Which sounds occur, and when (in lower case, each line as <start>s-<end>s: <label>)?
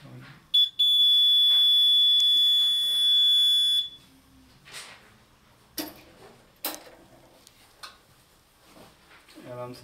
0.0s-0.5s: male speech
0.0s-9.8s: mechanisms
0.5s-0.6s: fire alarm
0.8s-4.0s: fire alarm
1.5s-1.7s: generic impact sounds
2.5s-2.9s: generic impact sounds
3.3s-3.5s: generic impact sounds
4.6s-5.2s: generic impact sounds
5.7s-6.1s: generic impact sounds
6.6s-7.0s: generic impact sounds
7.2s-7.7s: surface contact
7.4s-7.5s: generic impact sounds
7.7s-8.0s: generic impact sounds
8.6s-9.0s: generic impact sounds
9.1s-9.3s: generic impact sounds
9.3s-9.8s: male speech